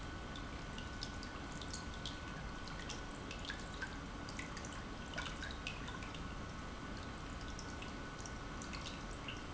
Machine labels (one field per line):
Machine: pump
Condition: normal